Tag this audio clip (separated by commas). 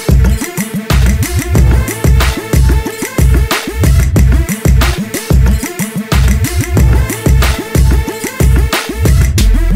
Music